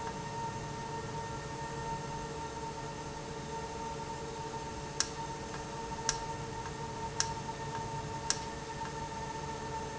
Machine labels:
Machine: valve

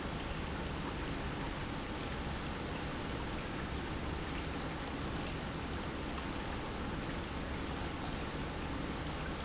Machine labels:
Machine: pump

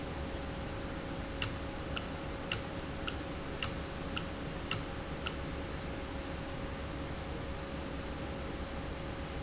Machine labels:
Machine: valve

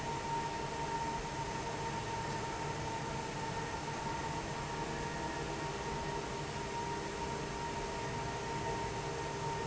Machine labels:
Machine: fan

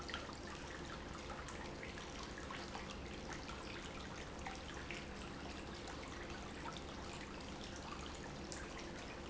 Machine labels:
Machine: pump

